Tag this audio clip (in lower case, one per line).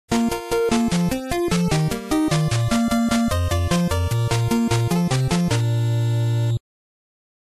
music